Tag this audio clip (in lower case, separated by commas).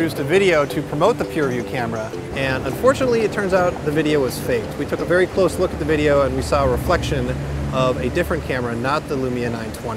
speech, music